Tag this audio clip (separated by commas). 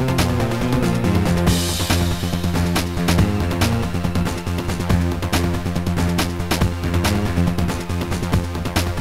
Video game music, Music